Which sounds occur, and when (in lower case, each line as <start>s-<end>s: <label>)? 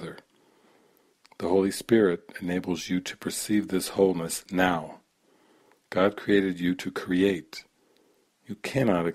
0.0s-0.2s: male speech
0.0s-9.1s: background noise
0.2s-0.3s: clicking
0.3s-1.1s: breathing
1.2s-1.4s: clicking
1.4s-2.2s: male speech
2.3s-5.1s: male speech
4.5s-4.6s: clicking
5.2s-5.8s: breathing
5.7s-5.8s: clicking
5.9s-7.7s: male speech
7.8s-8.3s: breathing
7.9s-8.0s: clicking
8.5s-9.1s: male speech